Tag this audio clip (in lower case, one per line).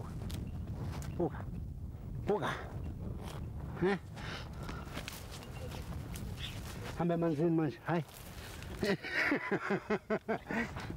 otter growling